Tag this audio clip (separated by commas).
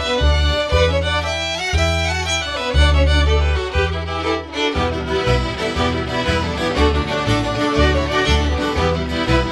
Music